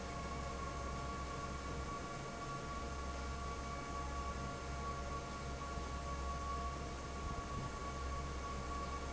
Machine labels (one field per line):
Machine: fan